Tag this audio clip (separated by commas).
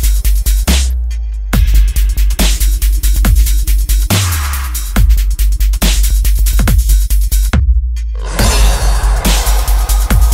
Dubstep, Music